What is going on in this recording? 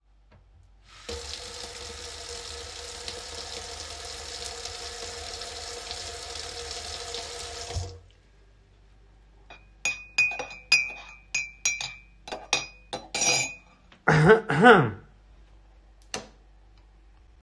I started the water in the sink. Then I stirred the tea in a mug with a spoon. After that I coughed. Finally I turned off the light switch